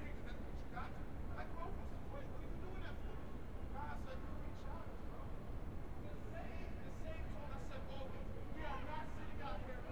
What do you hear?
person or small group talking